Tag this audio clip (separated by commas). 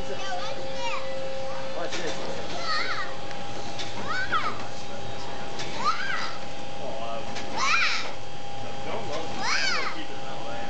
Speech